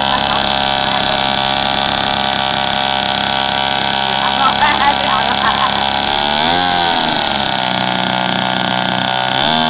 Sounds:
idling, vroom, vehicle, speech

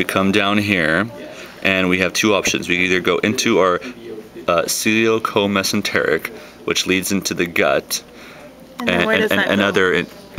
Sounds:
speech

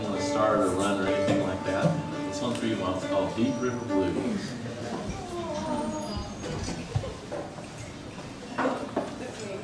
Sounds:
speech, music

